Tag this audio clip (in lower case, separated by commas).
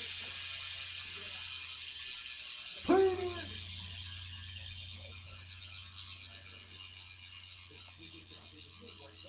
mechanisms, ratchet